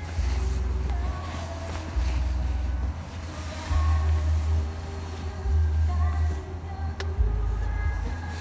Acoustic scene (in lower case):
car